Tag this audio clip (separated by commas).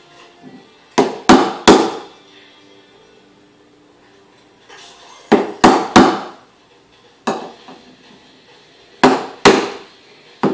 Music